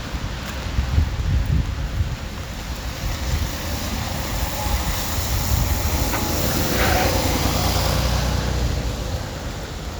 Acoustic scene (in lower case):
residential area